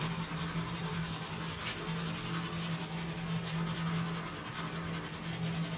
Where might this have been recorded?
in a restroom